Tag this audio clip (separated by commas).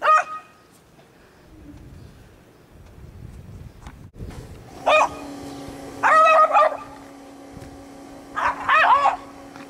pets, Animal, Dog, Yip, Bow-wow